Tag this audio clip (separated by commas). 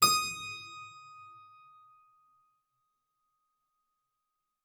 Music, Keyboard (musical), Musical instrument